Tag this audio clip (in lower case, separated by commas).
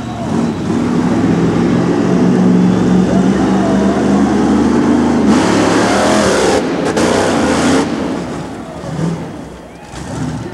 vehicle